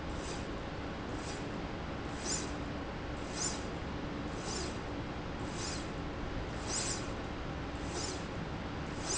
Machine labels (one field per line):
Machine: slide rail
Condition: normal